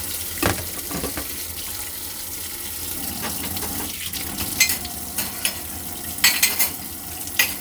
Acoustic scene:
kitchen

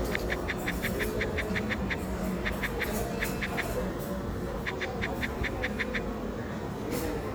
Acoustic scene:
cafe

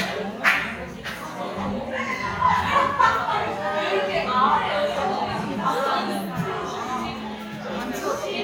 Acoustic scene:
crowded indoor space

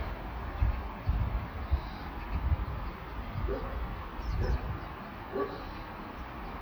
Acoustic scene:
park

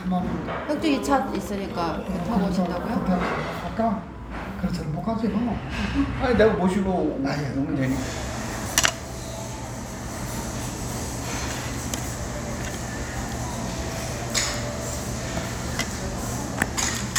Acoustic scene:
restaurant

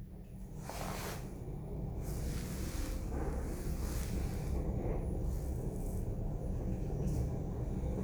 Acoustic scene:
elevator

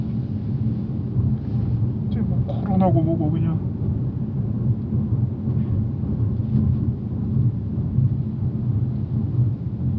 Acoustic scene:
car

